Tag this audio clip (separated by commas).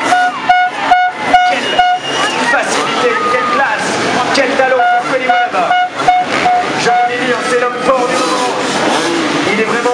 Motorcycle, Vehicle, Speech